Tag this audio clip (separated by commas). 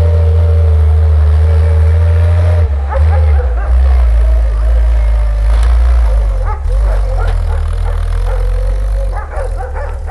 Vehicle, Truck